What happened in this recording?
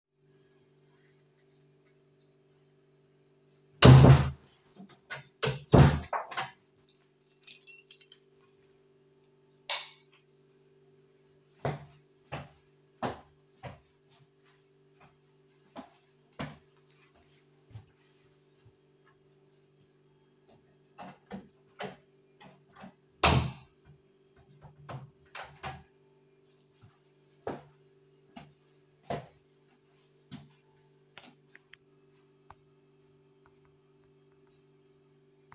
I opened the door,walked in ,jingle key chain briefly while walking,pressed the light switch,close the door